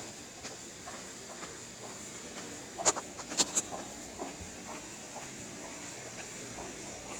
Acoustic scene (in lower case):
subway station